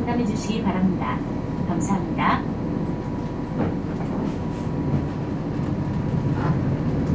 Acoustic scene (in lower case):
bus